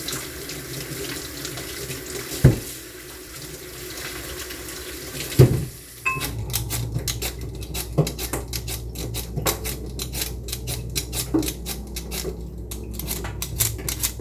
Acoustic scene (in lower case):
kitchen